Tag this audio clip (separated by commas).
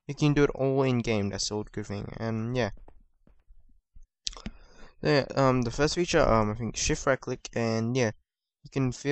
Speech